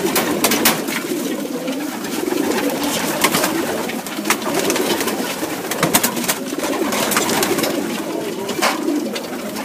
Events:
[0.00, 9.64] flapping wings
[0.00, 9.64] pigeon

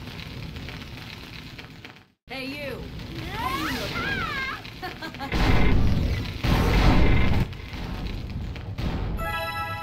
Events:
[0.00, 2.04] fire
[0.00, 2.08] video game sound
[2.25, 9.82] video game sound
[2.26, 2.92] man speaking
[2.27, 8.74] fire
[3.12, 4.51] sound effect
[3.17, 3.82] shout
[3.42, 3.84] man speaking
[3.95, 4.55] shout
[4.77, 5.29] laughter
[5.29, 6.30] sound effect
[6.42, 7.44] sound effect
[7.67, 8.54] sound effect
[8.75, 9.82] sound effect

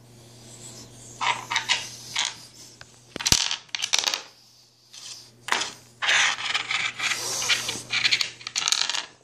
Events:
[0.00, 9.23] mechanisms
[0.13, 1.16] dog
[1.17, 1.79] surface contact
[1.79, 2.76] dog
[2.11, 2.31] surface contact
[2.77, 2.98] generic impact sounds
[3.12, 3.56] generic impact sounds
[3.69, 4.31] generic impact sounds
[4.25, 4.88] dog
[4.91, 5.29] surface contact
[5.46, 5.72] generic impact sounds
[5.98, 6.84] surface contact
[6.46, 7.74] dog
[6.98, 7.70] surface contact
[7.88, 8.24] surface contact
[8.39, 9.05] generic impact sounds

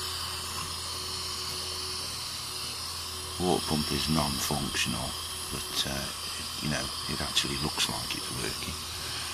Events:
[0.00, 9.33] mechanisms
[3.38, 5.13] man speaking
[5.50, 6.12] man speaking
[6.63, 6.85] man speaking
[7.07, 8.80] man speaking

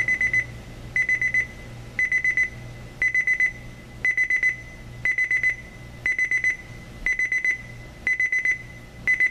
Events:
[0.00, 0.40] alarm clock
[0.00, 9.30] mechanisms
[0.89, 1.45] alarm clock
[1.94, 2.48] alarm clock
[2.96, 3.51] alarm clock
[3.97, 4.50] alarm clock
[4.99, 5.54] alarm clock
[6.00, 6.53] alarm clock
[7.00, 7.55] alarm clock
[8.01, 8.54] alarm clock
[9.01, 9.30] alarm clock

